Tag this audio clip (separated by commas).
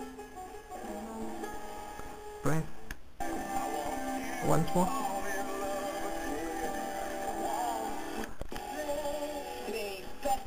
Radio, Speech, Music